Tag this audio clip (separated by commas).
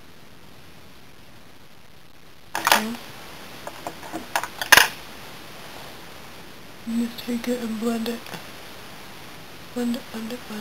Speech, inside a small room